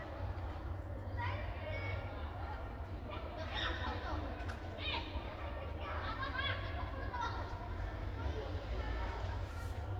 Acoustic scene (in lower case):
park